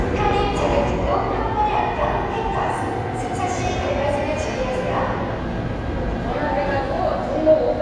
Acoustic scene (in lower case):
subway station